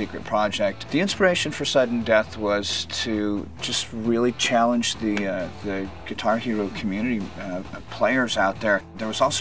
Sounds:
electric guitar
music
musical instrument
plucked string instrument
guitar
strum
speech

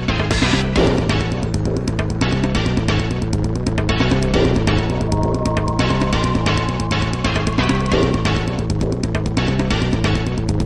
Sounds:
video game music
music

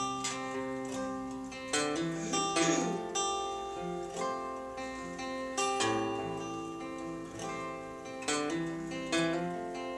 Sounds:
guitar
musical instrument
plucked string instrument

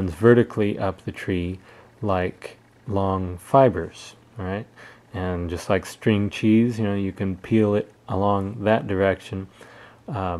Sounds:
speech

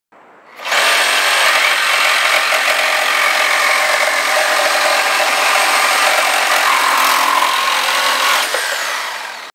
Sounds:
tools
power tool

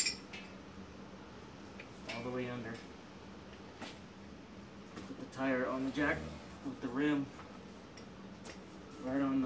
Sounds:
speech

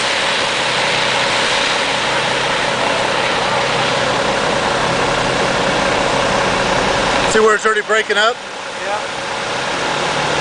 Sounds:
speech
truck
vehicle

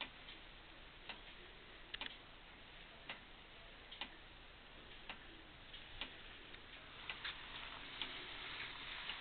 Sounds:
tick-tock

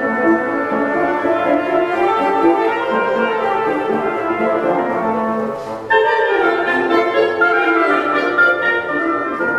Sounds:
music

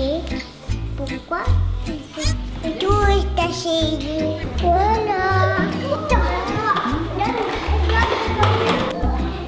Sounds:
speech
music

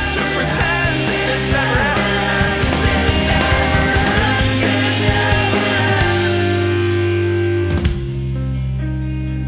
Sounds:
angry music
funk
music

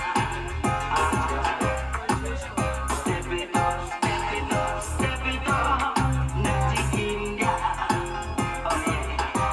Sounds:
music
speech

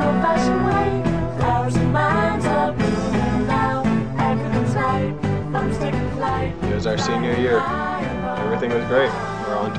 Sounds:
jingle (music)

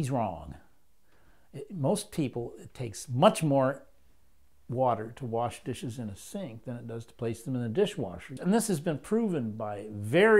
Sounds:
speech

